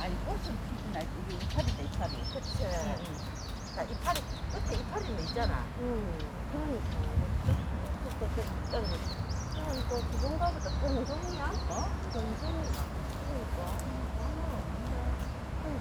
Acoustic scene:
park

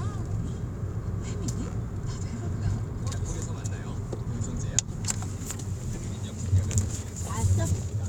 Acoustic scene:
car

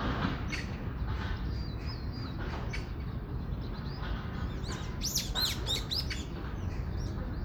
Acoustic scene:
park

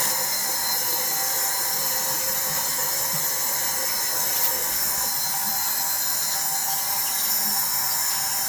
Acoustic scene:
restroom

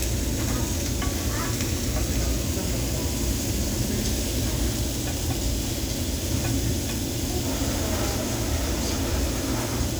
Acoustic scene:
restaurant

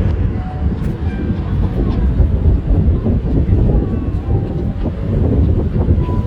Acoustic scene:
park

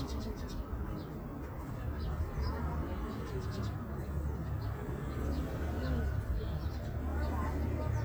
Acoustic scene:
park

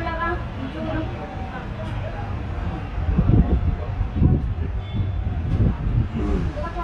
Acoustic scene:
residential area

